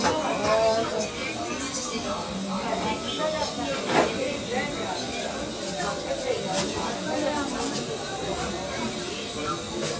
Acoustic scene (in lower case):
crowded indoor space